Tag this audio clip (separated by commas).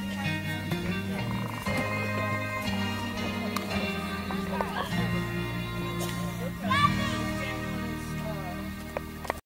Music, Wedding music, Speech